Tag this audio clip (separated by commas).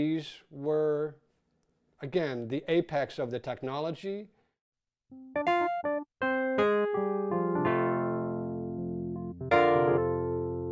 Keyboard (musical), Electric piano, Piano